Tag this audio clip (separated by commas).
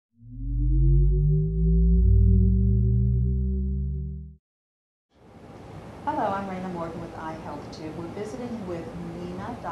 inside a small room, Speech